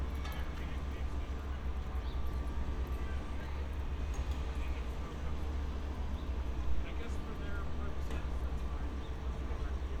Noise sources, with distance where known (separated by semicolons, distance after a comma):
person or small group talking, far